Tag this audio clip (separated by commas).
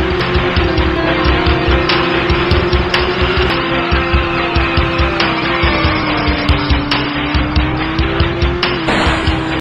Music, Vehicle